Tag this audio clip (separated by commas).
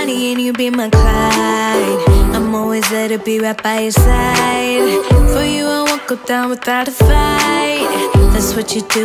Music, Independent music